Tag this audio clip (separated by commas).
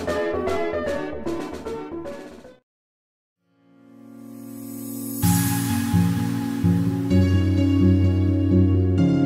Music